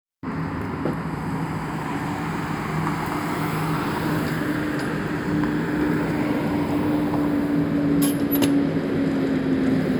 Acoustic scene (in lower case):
street